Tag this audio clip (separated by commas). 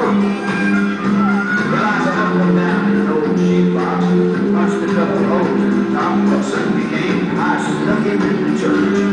pets, Whimper (dog), Dog, Music, Animal